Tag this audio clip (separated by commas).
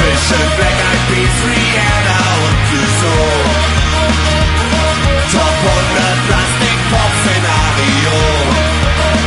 Music